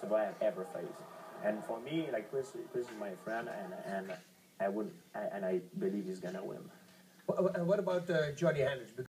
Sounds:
Speech

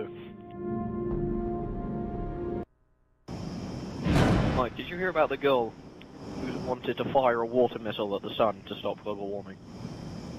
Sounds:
Speech, Music

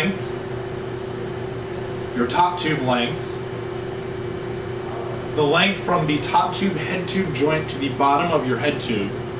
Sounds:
Speech

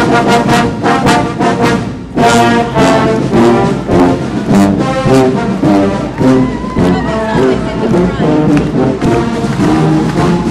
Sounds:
Speech, Crowd, Music

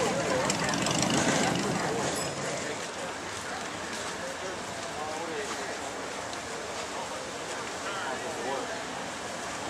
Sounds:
Speech, Vehicle

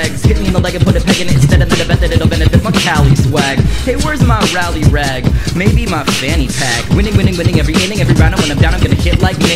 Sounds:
Music

